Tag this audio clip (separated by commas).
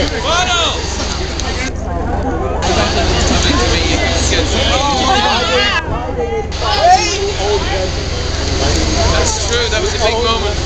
outside, urban or man-made, Speech, Chatter